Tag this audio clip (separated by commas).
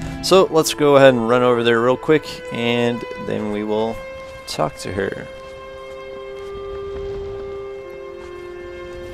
Music, Speech